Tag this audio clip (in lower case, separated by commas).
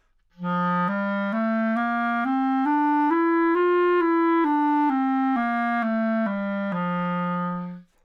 musical instrument, woodwind instrument, music